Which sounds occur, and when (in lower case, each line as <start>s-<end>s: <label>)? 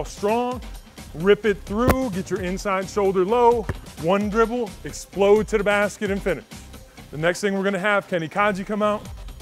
0.0s-9.4s: music
0.1s-0.6s: male speech
1.0s-3.6s: male speech
3.6s-3.8s: basketball bounce
3.9s-4.6s: male speech
4.8s-6.4s: male speech
7.1s-9.0s: male speech